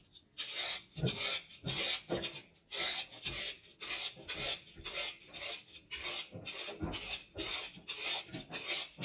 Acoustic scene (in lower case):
kitchen